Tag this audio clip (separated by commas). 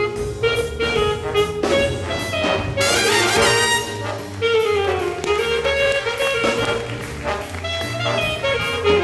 Music, Jazz